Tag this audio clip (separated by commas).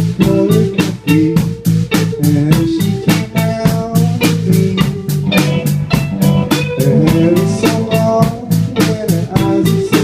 Music